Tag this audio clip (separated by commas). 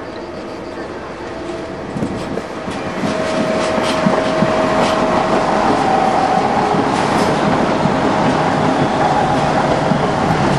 Clickety-clack, Train, train wagon, Rail transport